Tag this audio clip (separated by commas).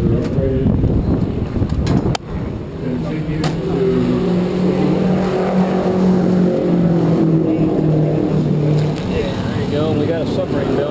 Vehicle, Speech